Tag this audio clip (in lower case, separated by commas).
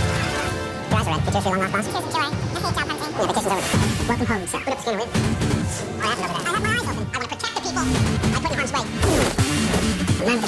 music, speech